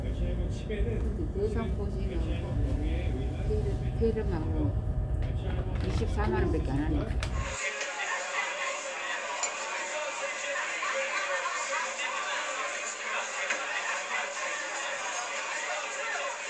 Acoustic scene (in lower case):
crowded indoor space